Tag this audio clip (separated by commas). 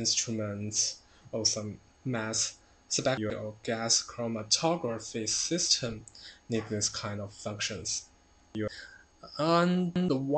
Speech